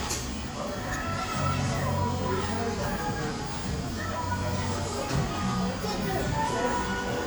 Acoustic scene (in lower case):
cafe